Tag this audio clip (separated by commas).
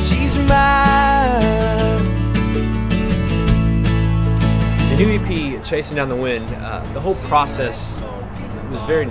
Music, Speech